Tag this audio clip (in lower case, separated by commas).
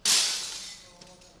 shatter, glass